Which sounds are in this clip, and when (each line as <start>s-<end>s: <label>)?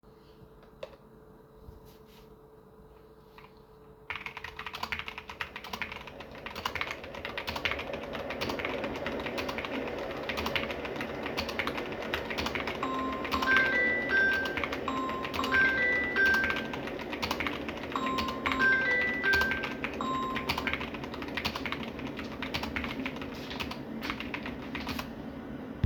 4.1s-25.2s: keyboard typing
12.8s-20.9s: phone ringing